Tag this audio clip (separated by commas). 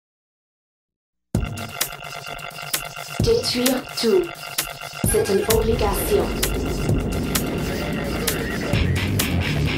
Music, Speech